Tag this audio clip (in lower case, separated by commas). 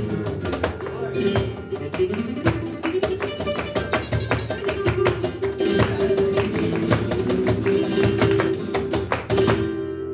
flamenco, music